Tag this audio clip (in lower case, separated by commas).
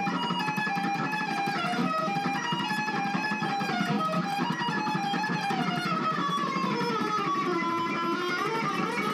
acoustic guitar, bass guitar, music, guitar, plucked string instrument, musical instrument